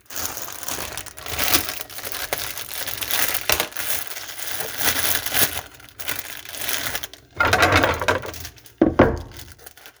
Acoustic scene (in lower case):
kitchen